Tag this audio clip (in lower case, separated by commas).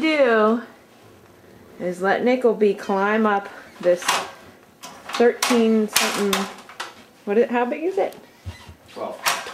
cat, pets, animal, speech